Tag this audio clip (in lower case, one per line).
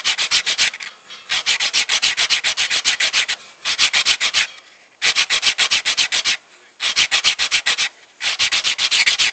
rub